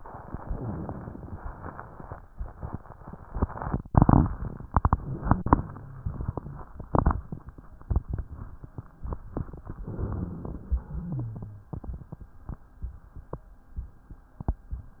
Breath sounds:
9.78-10.79 s: inhalation
9.78-10.79 s: rhonchi
10.80-11.73 s: exhalation
10.80-11.73 s: rhonchi

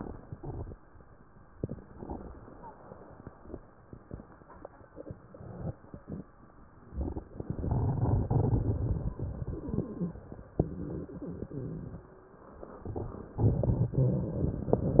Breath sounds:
0.00-0.30 s: crackles
0.00-0.32 s: inhalation
0.38-0.68 s: crackles
0.38-0.70 s: exhalation

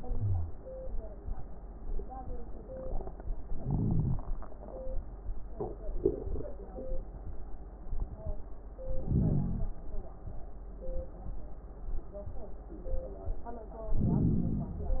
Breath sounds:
0.15-0.54 s: wheeze
3.52-4.23 s: inhalation
3.52-4.23 s: crackles
8.86-9.75 s: inhalation
8.86-9.75 s: crackles
13.98-15.00 s: inhalation
13.98-15.00 s: crackles

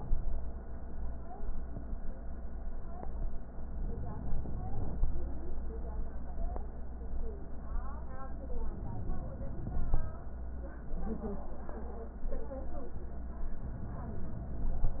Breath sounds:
3.73-5.30 s: inhalation
8.58-10.14 s: inhalation

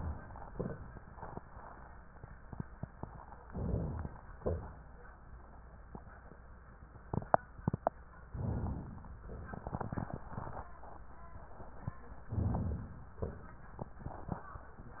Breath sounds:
3.46-4.17 s: inhalation
4.38-4.93 s: exhalation
8.27-9.21 s: inhalation
12.30-13.13 s: inhalation
13.21-13.70 s: exhalation

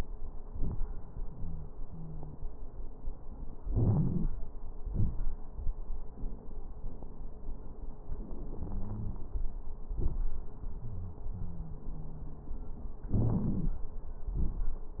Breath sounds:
1.32-1.68 s: wheeze
1.86-2.35 s: wheeze
3.66-4.27 s: inhalation
3.66-4.27 s: crackles
4.81-5.33 s: exhalation
4.81-5.33 s: crackles
8.64-9.25 s: wheeze
10.84-11.22 s: wheeze
11.35-12.57 s: wheeze
13.12-13.83 s: inhalation
13.12-13.83 s: crackles
14.29-14.76 s: exhalation
14.29-14.76 s: crackles

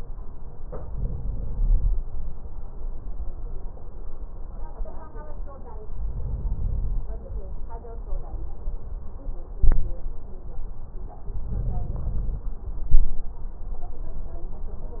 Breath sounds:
0.87-1.90 s: inhalation
6.03-7.06 s: inhalation
11.42-12.45 s: inhalation

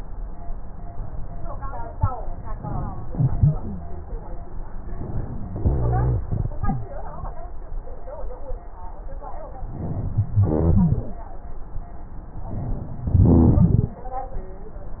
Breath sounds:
3.09-3.59 s: exhalation
3.09-3.59 s: wheeze
4.92-5.54 s: inhalation
5.60-6.21 s: exhalation
5.60-6.21 s: rhonchi
9.75-10.44 s: inhalation
10.44-11.20 s: exhalation
10.44-11.20 s: rhonchi
12.47-13.11 s: inhalation
13.11-13.95 s: exhalation
13.11-13.95 s: rhonchi

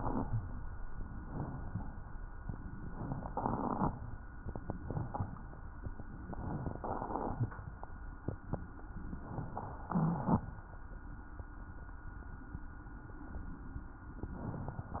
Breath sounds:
0.00-0.51 s: rhonchi
1.08-1.63 s: inhalation
1.63-1.95 s: exhalation
1.63-1.95 s: rhonchi
2.41-3.28 s: inhalation
3.34-3.95 s: exhalation
3.34-3.95 s: crackles
6.20-6.81 s: crackles
6.26-6.79 s: inhalation
6.83-7.57 s: exhalation
6.83-7.57 s: crackles
9.16-9.89 s: inhalation
9.90-10.63 s: exhalation
9.90-10.63 s: rhonchi

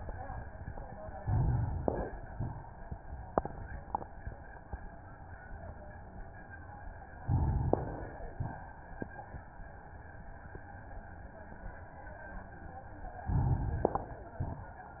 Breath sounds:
1.18-2.32 s: inhalation
2.30-2.77 s: exhalation
7.21-8.35 s: inhalation
8.37-8.84 s: exhalation
13.26-14.40 s: inhalation
14.40-14.88 s: exhalation

